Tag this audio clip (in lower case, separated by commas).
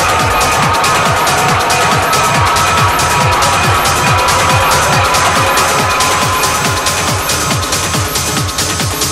music, electronic music, techno